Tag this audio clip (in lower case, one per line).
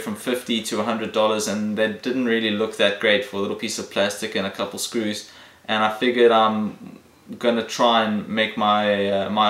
speech